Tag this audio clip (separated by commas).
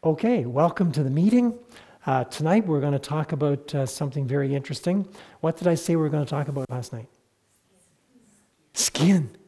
Speech